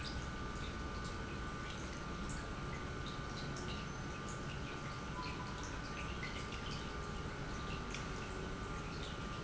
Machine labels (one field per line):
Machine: pump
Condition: normal